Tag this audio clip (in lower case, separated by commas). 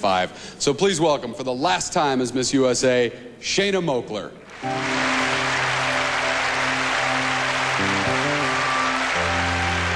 music, speech